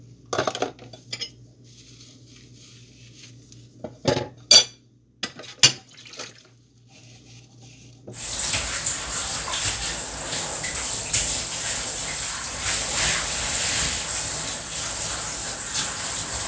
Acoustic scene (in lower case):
kitchen